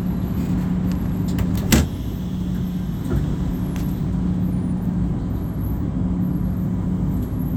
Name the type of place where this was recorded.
bus